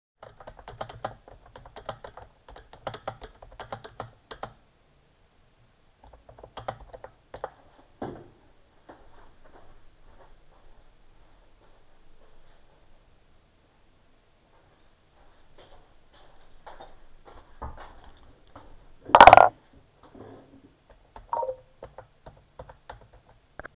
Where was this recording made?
kitchen